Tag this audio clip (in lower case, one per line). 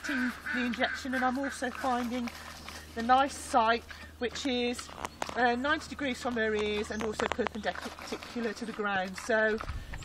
speech